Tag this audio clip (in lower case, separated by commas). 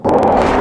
rail transport, vehicle, train